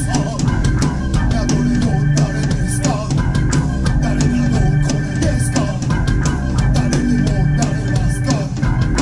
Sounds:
Music, Singing, Musical instrument

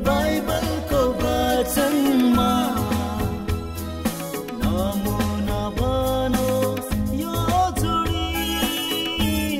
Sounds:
Wedding music, Music, Music of Bollywood

